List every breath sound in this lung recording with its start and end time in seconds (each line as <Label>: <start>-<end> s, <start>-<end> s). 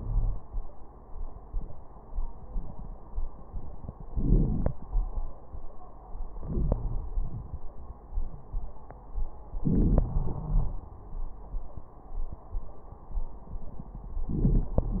Inhalation: 4.12-4.77 s, 6.39-7.04 s, 9.60-10.06 s, 14.29-14.77 s
Exhalation: 7.17-7.63 s, 10.04-10.91 s
Crackles: 4.12-4.77 s